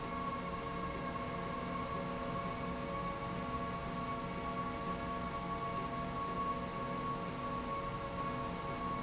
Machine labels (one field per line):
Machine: slide rail